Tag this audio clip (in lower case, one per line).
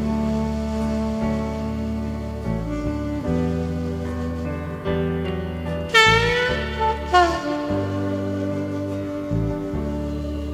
saxophone
brass instrument